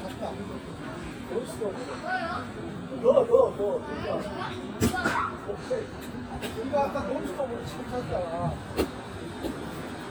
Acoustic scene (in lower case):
park